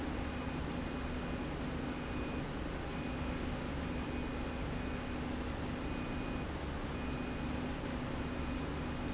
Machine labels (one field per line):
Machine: slide rail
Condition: normal